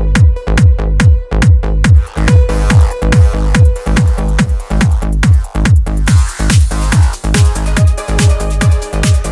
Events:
[0.00, 9.31] music

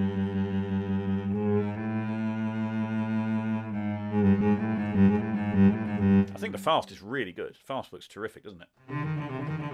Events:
[0.00, 6.67] music
[4.62, 4.96] generic impact sounds
[6.16, 6.45] generic impact sounds
[6.31, 8.71] male speech
[8.74, 9.73] music
[9.33, 9.51] generic impact sounds
[9.72, 9.73] generic impact sounds

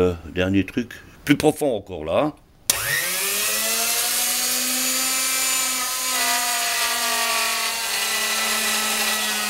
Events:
[0.00, 1.04] male speech
[0.00, 2.65] mechanisms
[1.19, 2.31] male speech
[2.28, 2.40] tick
[2.66, 9.45] drill

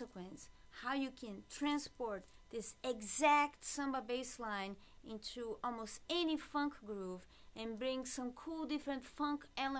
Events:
[0.00, 0.38] woman speaking
[0.00, 9.75] mechanisms
[0.69, 2.23] woman speaking
[2.44, 2.63] woman speaking
[2.83, 4.71] woman speaking
[4.75, 5.00] breathing
[4.98, 7.17] woman speaking
[7.25, 7.49] breathing
[7.53, 9.75] woman speaking

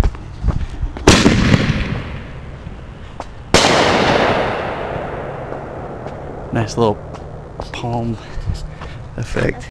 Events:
[0.00, 0.08] generic impact sounds
[0.00, 9.69] background noise
[0.45, 0.57] generic impact sounds
[1.04, 1.91] fireworks
[1.91, 3.15] reverberation
[3.17, 3.26] generic impact sounds
[3.54, 4.71] fireworks
[4.71, 7.56] reverberation
[6.00, 6.08] generic impact sounds
[6.50, 6.92] male speech
[7.12, 7.20] generic impact sounds
[7.57, 8.17] male speech
[7.85, 8.43] rub
[7.89, 7.96] tick
[8.07, 8.45] breathing
[8.67, 9.04] breathing
[9.13, 9.53] male speech
[9.17, 9.23] tick
[9.56, 9.69] human voice

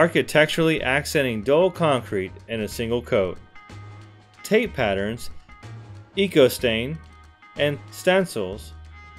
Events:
[0.00, 2.25] male speech
[0.00, 9.15] music
[2.45, 3.33] male speech
[4.37, 5.28] male speech
[6.09, 6.94] male speech
[6.92, 7.23] generic impact sounds
[7.53, 7.74] male speech
[7.87, 8.71] male speech

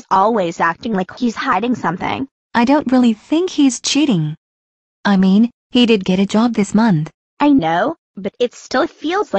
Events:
[0.01, 2.27] female speech
[2.50, 4.36] female speech
[5.02, 5.48] female speech
[5.68, 7.09] female speech
[7.34, 7.95] female speech
[8.10, 9.35] female speech

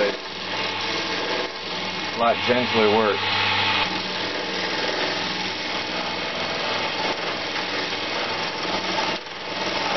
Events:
[0.00, 9.95] mechanisms
[2.14, 3.24] man speaking

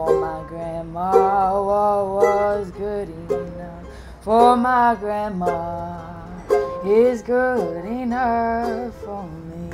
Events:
[0.00, 3.81] female singing
[0.00, 9.73] background noise
[0.00, 9.73] music
[3.88, 4.15] breathing
[4.19, 6.43] female singing
[6.83, 9.73] female singing

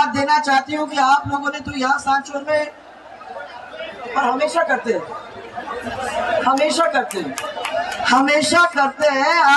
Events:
[0.00, 2.71] female speech
[0.00, 9.55] crowd
[4.11, 5.12] female speech
[6.39, 7.36] female speech
[6.54, 8.22] clapping
[8.00, 9.55] female speech

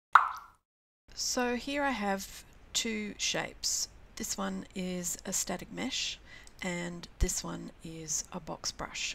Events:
[0.10, 0.57] plop
[1.05, 9.14] background noise
[1.13, 9.14] monologue
[6.19, 6.48] breathing

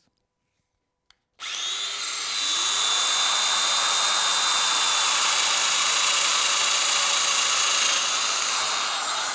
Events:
[0.02, 0.20] generic impact sounds
[1.09, 1.23] clicking
[1.39, 9.34] drill

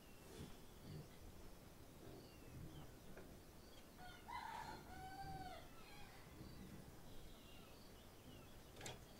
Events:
[0.00, 9.15] wind
[0.17, 0.51] surface contact
[0.78, 1.15] tweet
[0.84, 0.98] generic impact sounds
[1.07, 1.21] generic impact sounds
[2.00, 2.08] generic impact sounds
[2.08, 2.87] tweet
[3.10, 3.23] generic impact sounds
[3.55, 4.01] tweet
[3.99, 5.58] cock-a-doodle-doo
[4.42, 4.80] surface contact
[5.83, 6.25] tweet
[6.38, 6.87] tweet
[7.02, 9.15] tweet
[8.76, 8.97] generic impact sounds

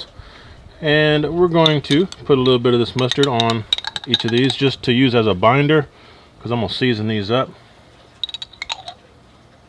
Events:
[0.00, 0.70] breathing
[0.00, 9.65] background noise
[0.79, 2.01] male speech
[1.61, 2.15] generic impact sounds
[2.26, 5.78] male speech
[2.40, 2.55] generic impact sounds
[2.85, 3.52] generic impact sounds
[3.71, 4.71] generic impact sounds
[5.88, 6.42] breathing
[6.39, 7.47] male speech
[8.20, 8.94] generic impact sounds

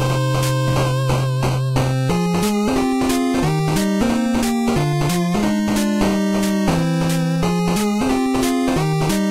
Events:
[0.01, 9.30] music

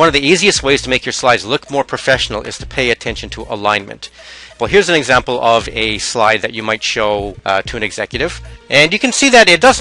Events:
[0.00, 4.02] man speaking
[0.00, 9.80] music
[4.01, 4.61] breathing
[4.60, 8.28] man speaking
[8.30, 8.61] breathing
[8.71, 9.80] man speaking

